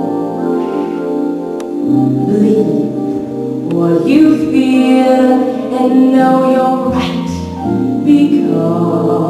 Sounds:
female singing, music

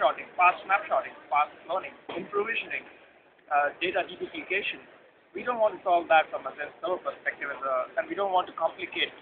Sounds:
speech

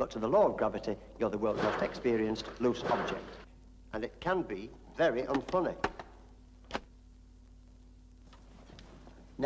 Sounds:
speech

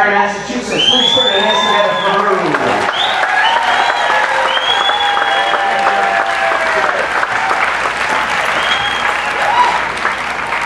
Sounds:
speech

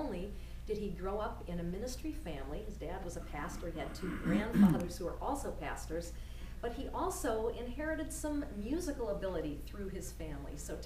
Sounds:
speech

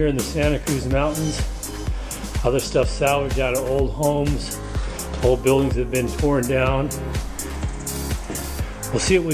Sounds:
speech, music

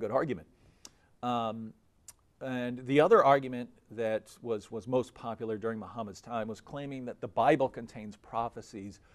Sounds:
speech

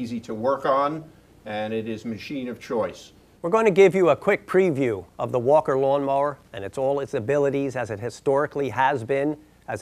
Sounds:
speech

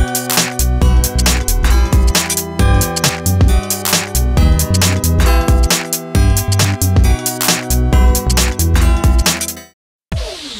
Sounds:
synthesizer, music

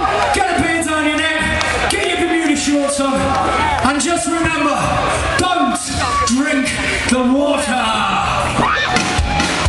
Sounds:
music, speech

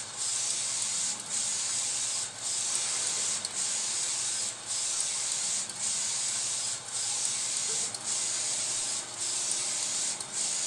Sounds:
printer

